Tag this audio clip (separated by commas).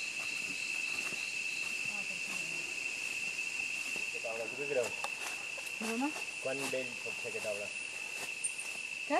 Speech, outside, rural or natural